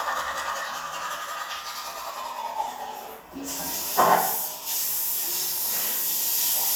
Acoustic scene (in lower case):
restroom